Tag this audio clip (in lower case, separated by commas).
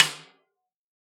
music, percussion, snare drum, musical instrument, drum